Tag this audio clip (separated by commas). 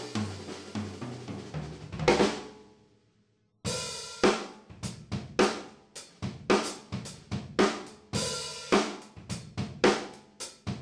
Drum, Music, Musical instrument, Drum kit, Drum machine